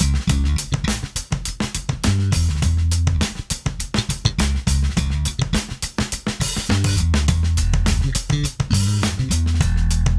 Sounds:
Jazz, Music

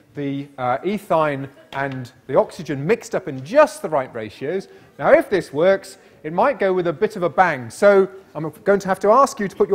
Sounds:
Speech

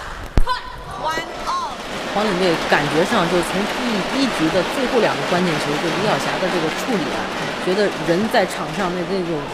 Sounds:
Speech

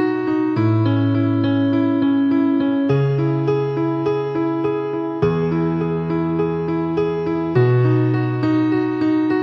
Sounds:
Music

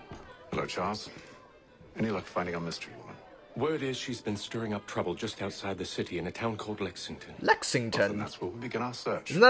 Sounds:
Speech

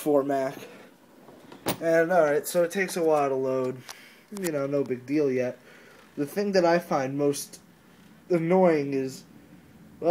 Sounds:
Speech

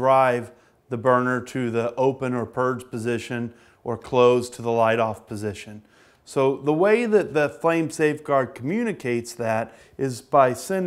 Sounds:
Speech

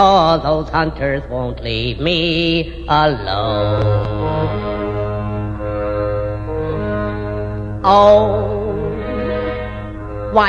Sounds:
Music

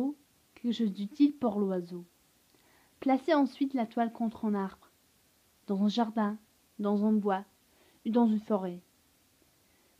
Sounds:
Speech

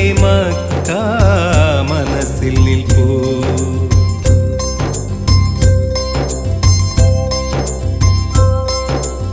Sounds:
Male singing, Music

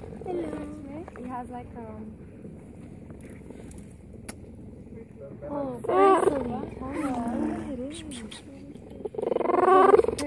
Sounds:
cheetah chirrup

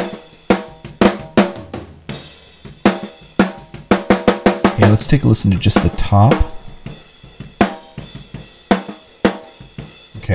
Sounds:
Snare drum, Music, Cymbal, Speech

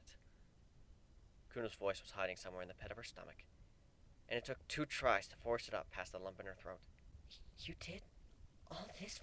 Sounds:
Whispering

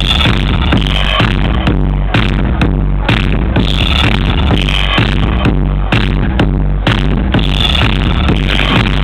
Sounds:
Speech, Music, Electronic music, Techno

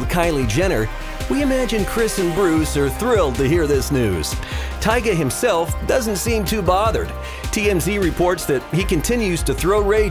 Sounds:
Speech, Music

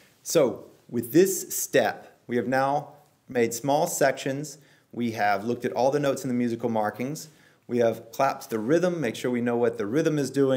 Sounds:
Speech

